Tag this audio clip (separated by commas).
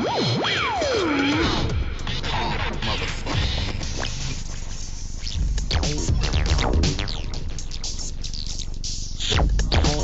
Hip hop music, Music, Electronic music